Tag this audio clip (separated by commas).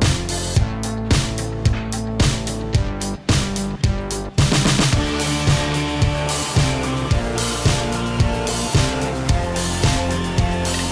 Music